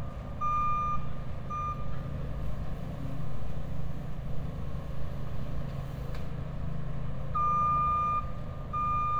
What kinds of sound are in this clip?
reverse beeper